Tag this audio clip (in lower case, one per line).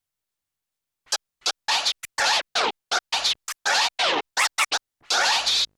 music
scratching (performance technique)
musical instrument